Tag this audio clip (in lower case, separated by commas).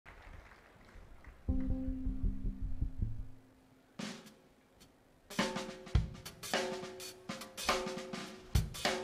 cymbal, bass drum, music, rimshot, snare drum